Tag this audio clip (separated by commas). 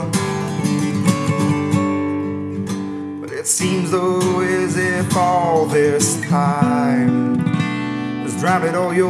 Music, Plucked string instrument, Musical instrument, Acoustic guitar, Singing, Guitar